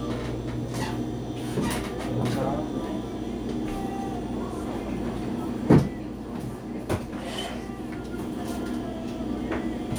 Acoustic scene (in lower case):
cafe